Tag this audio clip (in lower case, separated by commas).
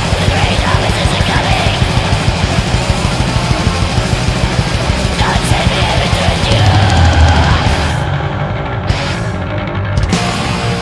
angry music, music, rock music